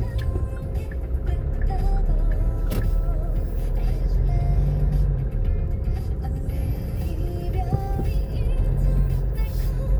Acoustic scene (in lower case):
car